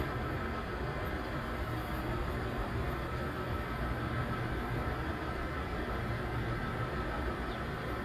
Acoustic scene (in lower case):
street